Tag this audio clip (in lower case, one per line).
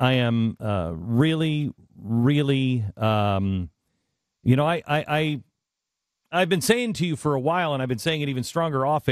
speech